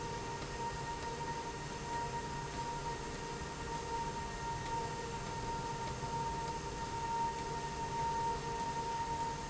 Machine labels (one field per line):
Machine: slide rail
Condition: abnormal